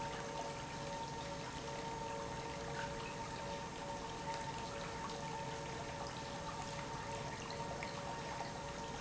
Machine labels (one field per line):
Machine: pump